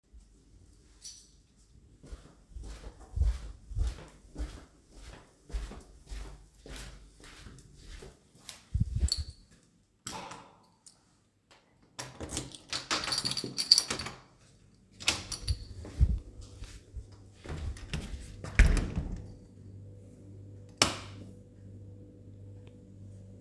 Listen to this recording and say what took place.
I walked down the hallway, inserted the key into the lock and turned it. I opened the door and got into the living room. Finally, I turned on the light.